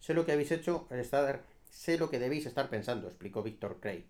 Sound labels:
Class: speech